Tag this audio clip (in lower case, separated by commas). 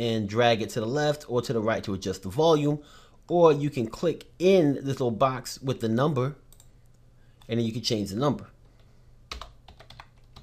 computer keyboard